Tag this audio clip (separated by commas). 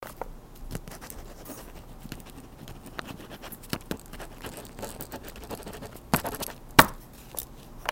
Writing, Domestic sounds